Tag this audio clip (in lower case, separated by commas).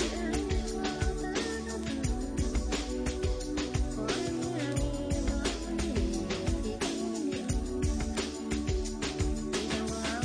music